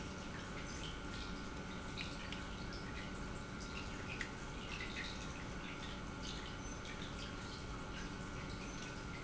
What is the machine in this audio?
pump